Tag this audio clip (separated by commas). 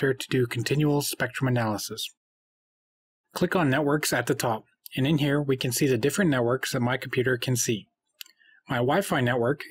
Speech